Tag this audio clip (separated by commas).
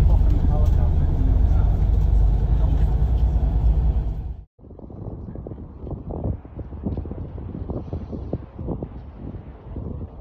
volcano explosion